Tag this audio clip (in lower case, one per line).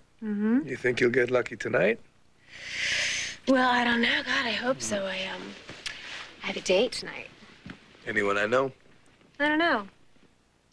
speech